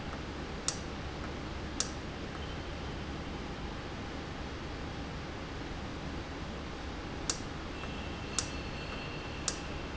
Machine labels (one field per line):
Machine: valve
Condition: normal